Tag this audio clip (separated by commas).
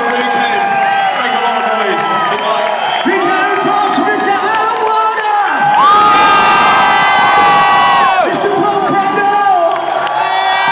inside a large room or hall, Speech